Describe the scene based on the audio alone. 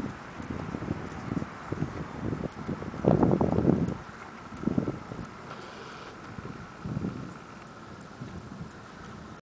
Wind blows hard and traffic hums in the distance